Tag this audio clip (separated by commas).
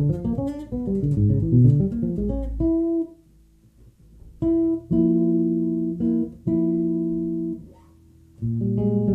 Musical instrument, Bass guitar, Plucked string instrument, Guitar, playing bass guitar, Music, Electric guitar